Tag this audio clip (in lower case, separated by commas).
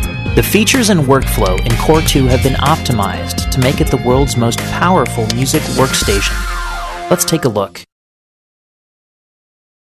speech, music